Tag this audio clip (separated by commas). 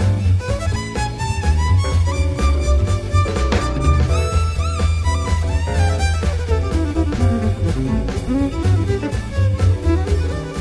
Music, Musical instrument, fiddle